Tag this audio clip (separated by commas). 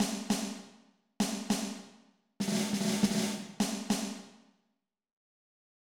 Snare drum, Drum, Percussion, Musical instrument, Music